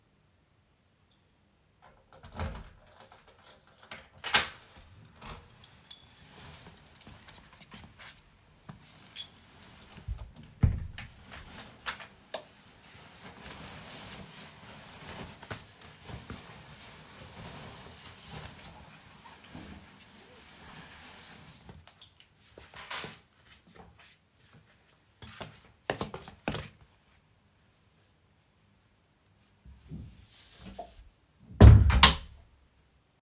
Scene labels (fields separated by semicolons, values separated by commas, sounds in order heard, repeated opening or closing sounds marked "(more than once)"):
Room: bedroom; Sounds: keys, door (more than once), light switch, footsteps